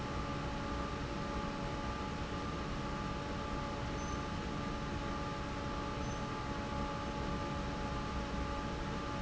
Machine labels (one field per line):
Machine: fan